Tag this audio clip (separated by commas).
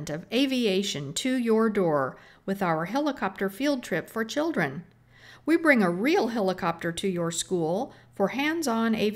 Speech